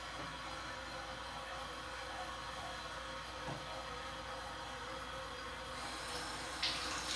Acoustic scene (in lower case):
restroom